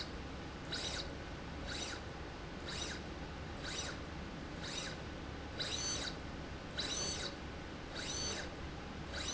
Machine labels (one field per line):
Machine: slide rail